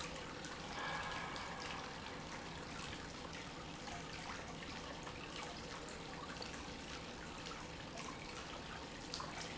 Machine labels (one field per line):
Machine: pump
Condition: normal